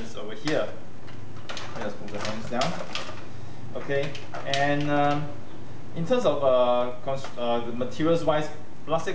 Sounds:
Speech

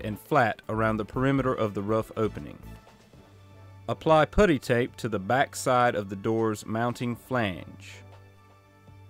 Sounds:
Music, Speech

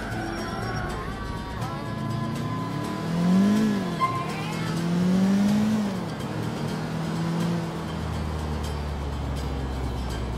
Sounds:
Car, Music, Vehicle

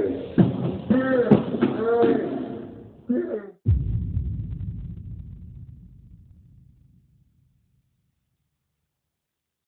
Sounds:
Speech

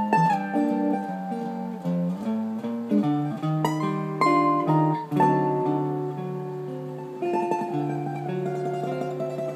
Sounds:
Guitar, Musical instrument, Music, Mandolin, Plucked string instrument

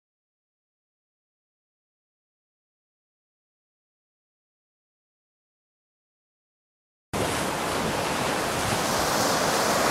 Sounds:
Ocean, Wind, Wind noise (microphone), Waves, ocean burbling

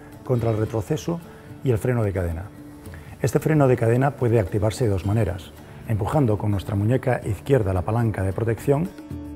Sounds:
Speech, Music

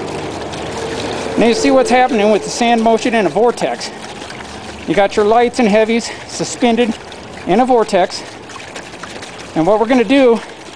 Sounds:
outside, rural or natural, Speech, Liquid

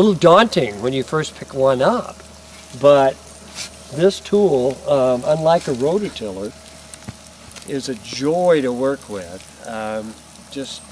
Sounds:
Speech, Tools

